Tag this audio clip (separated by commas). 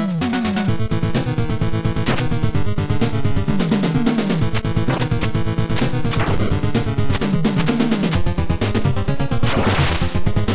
Music